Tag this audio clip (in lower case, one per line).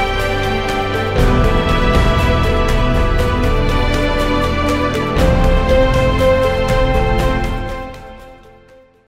music